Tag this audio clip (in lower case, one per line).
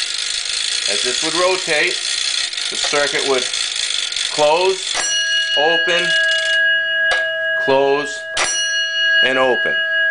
speech
alarm